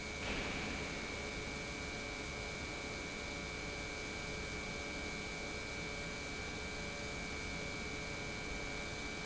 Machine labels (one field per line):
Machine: pump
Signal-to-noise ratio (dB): 0 dB